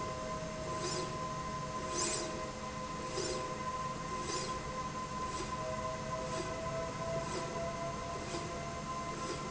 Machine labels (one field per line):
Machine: slide rail